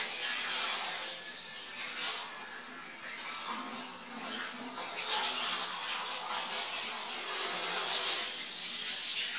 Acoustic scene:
restroom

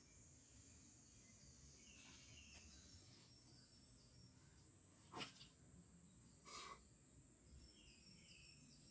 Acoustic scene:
park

